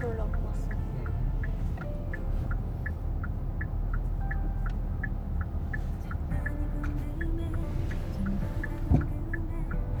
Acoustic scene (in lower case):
car